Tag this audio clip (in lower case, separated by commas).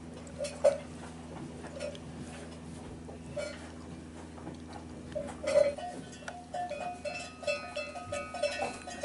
bovinae cowbell